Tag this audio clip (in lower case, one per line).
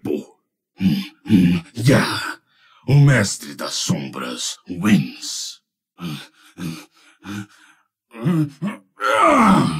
speech
groan